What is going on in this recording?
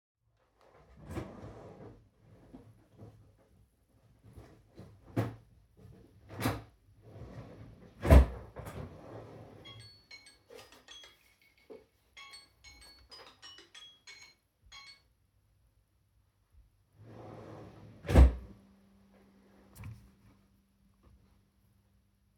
I opened the drawer and looked for something, when the alarm on the phone went off. I turned it off and continued looking in the drawer.